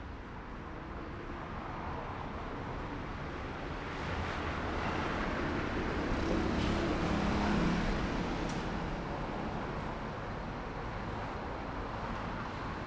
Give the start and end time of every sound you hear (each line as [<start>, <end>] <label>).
[0.00, 12.86] car
[0.00, 12.86] car wheels rolling
[5.46, 9.58] motorcycle
[5.46, 9.58] motorcycle engine accelerating
[6.42, 8.57] bus compressor
[6.42, 12.86] bus
[8.67, 12.86] bus engine idling
[10.76, 11.60] bus compressor